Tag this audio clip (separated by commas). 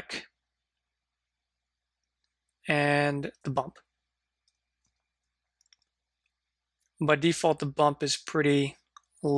Speech